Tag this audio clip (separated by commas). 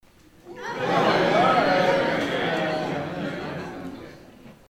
Crowd, Human group actions